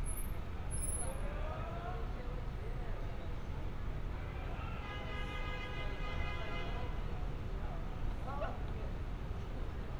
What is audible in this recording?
car horn, unidentified human voice